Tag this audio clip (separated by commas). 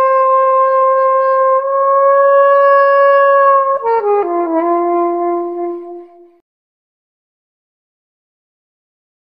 Music